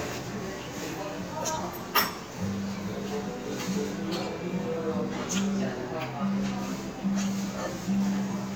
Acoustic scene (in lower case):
restaurant